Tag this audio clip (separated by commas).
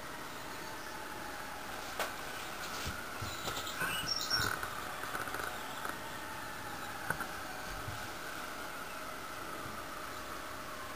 crow cawing